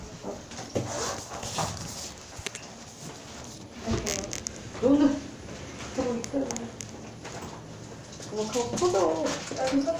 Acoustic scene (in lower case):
elevator